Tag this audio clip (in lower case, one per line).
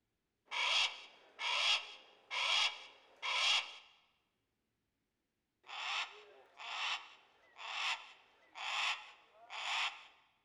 bird
crow
wild animals
animal